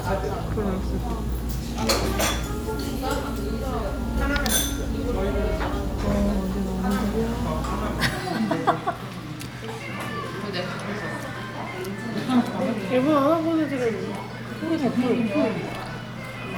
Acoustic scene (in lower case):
crowded indoor space